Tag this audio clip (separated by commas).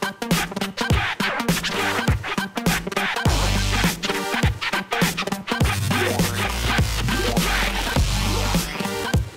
Music